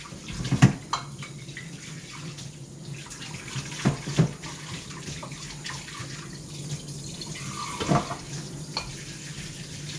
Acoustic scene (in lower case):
kitchen